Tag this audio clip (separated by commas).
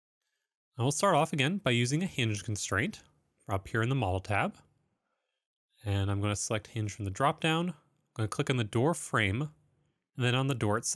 Speech